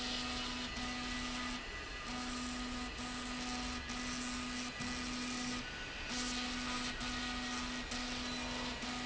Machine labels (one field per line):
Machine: slide rail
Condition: abnormal